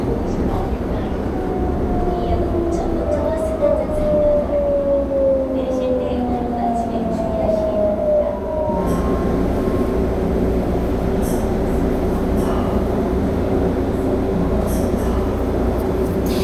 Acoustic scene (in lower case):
subway train